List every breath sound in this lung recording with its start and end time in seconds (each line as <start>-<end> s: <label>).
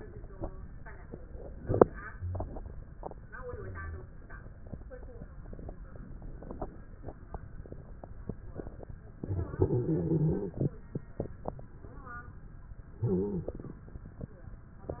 3.25-4.07 s: wheeze
9.16-10.74 s: inhalation
9.16-10.74 s: wheeze
12.96-13.52 s: wheeze
12.96-13.80 s: inhalation